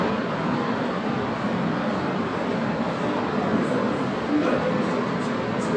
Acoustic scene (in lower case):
subway station